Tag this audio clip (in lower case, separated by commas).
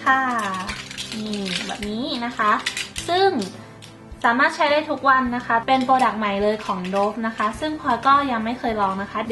music, speech